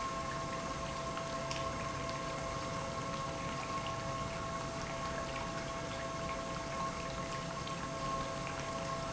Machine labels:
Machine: pump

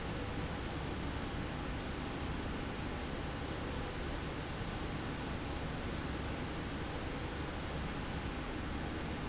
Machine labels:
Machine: slide rail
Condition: normal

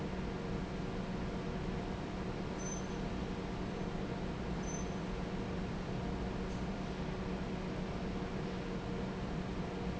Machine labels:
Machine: fan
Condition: normal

